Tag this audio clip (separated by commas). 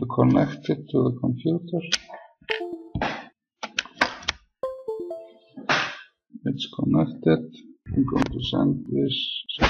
Speech